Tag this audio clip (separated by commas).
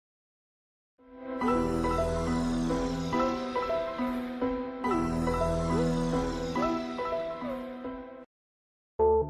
Music